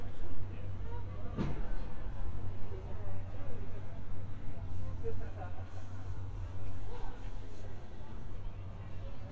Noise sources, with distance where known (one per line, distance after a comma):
person or small group talking, near